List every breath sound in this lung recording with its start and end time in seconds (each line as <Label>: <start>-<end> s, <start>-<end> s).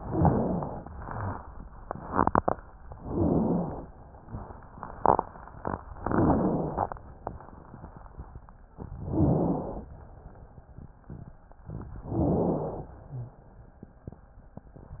Inhalation: 0.00-0.93 s, 2.98-3.91 s, 6.01-6.95 s, 9.01-9.94 s, 12.05-12.98 s
Wheeze: 6.01-6.95 s, 12.05-12.98 s
Rhonchi: 0.00-0.93 s, 2.98-3.91 s, 9.01-9.94 s